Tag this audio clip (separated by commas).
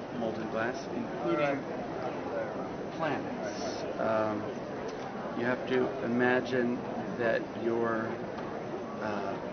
Speech